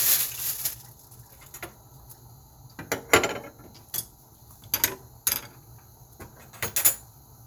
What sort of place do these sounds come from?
kitchen